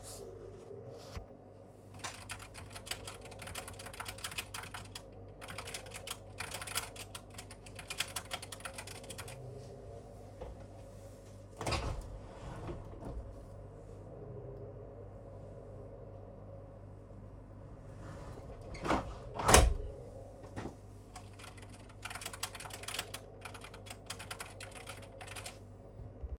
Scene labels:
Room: living room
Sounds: keyboard typing, window (more than once)

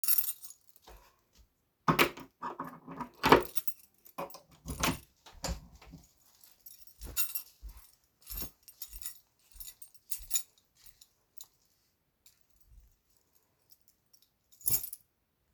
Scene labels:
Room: lobby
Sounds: keys, door

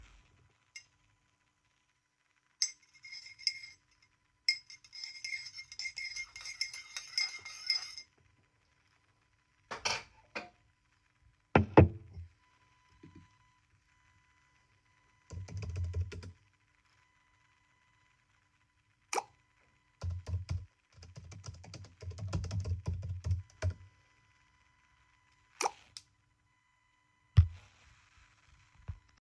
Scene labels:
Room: office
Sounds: cutlery and dishes, keyboard typing, phone ringing

